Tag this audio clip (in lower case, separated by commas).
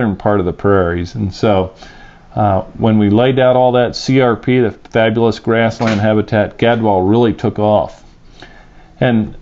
speech